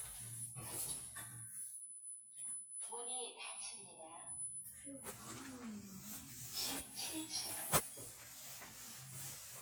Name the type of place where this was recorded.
elevator